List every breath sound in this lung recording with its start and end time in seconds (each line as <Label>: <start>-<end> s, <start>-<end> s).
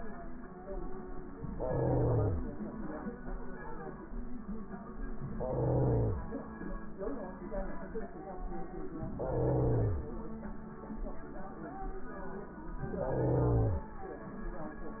Inhalation: 1.50-2.48 s, 5.23-6.21 s, 9.05-10.04 s, 12.85-13.83 s